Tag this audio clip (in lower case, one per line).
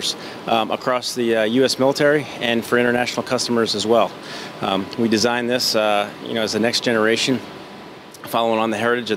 speech